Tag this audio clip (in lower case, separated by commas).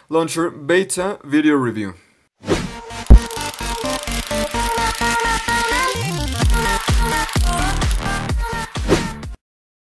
electronic dance music, inside a small room, speech, music